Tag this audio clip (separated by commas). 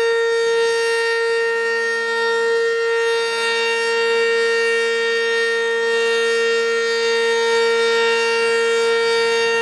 Siren, Civil defense siren